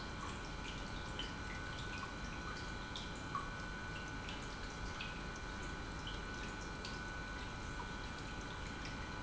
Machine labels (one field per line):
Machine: pump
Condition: normal